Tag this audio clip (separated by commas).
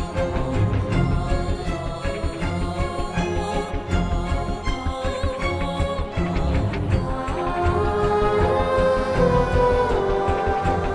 Soundtrack music, Background music, Music, Sad music